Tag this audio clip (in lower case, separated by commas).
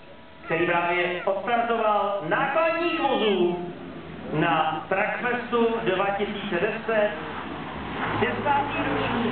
speech, truck, vehicle